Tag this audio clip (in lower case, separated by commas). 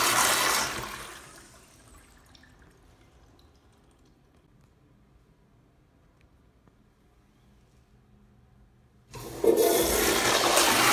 toilet flushing